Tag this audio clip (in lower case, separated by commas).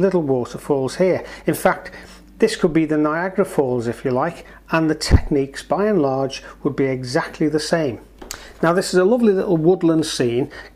speech